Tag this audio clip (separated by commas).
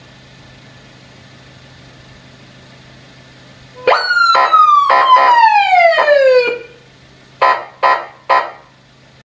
Police car (siren), Siren